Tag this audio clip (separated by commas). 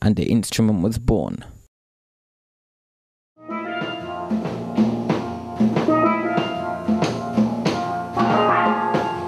Drum, Percussion